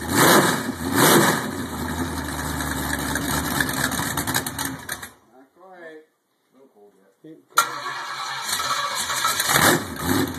An engine is revved up then immediately it stops followed by a male's voice saying something